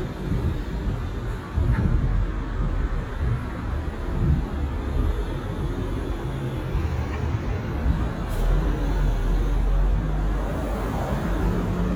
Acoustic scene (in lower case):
street